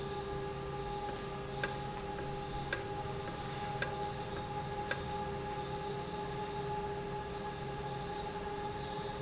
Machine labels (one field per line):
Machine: valve